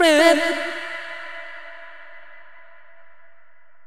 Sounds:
Human voice, Singing

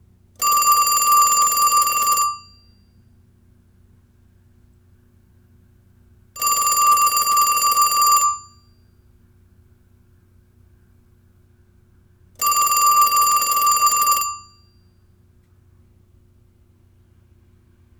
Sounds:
Alarm, Telephone

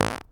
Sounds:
Fart

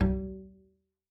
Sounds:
Musical instrument, Music, Bowed string instrument

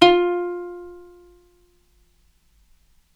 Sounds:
Musical instrument, Plucked string instrument, Music

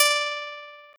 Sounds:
Plucked string instrument, Musical instrument, Guitar, Music

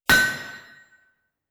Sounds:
Tools, Hammer

